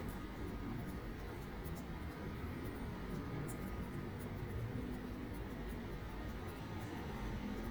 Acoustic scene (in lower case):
residential area